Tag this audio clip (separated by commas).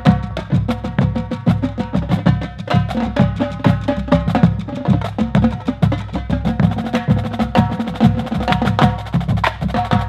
Music, Bass drum, Musical instrument, Drum